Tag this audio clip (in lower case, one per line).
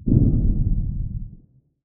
explosion
boom